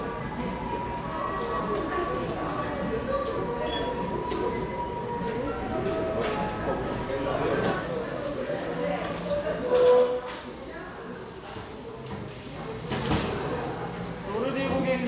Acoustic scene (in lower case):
cafe